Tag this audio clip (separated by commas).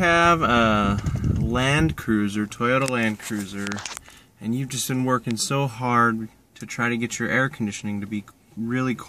Speech